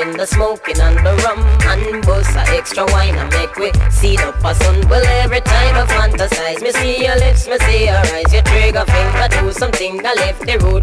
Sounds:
reggae

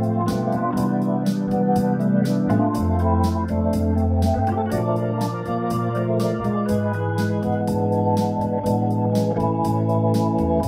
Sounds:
playing hammond organ

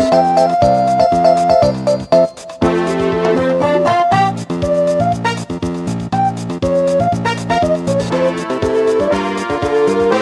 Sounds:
music

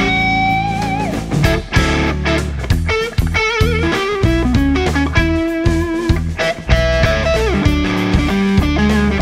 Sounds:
guitar
electric guitar
musical instrument
music
plucked string instrument

